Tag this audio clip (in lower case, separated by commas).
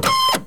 mechanisms, printer